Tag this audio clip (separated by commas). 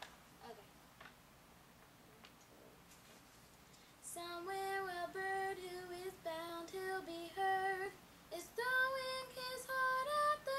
Child singing, Female singing